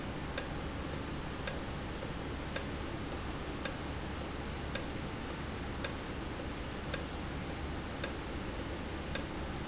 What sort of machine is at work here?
valve